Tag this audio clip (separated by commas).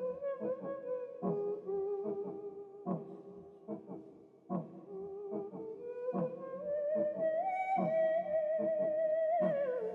playing theremin